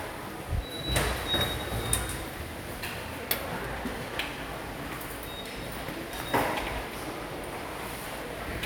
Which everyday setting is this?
subway station